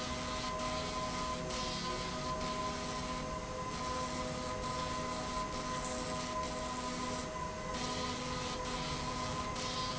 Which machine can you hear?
slide rail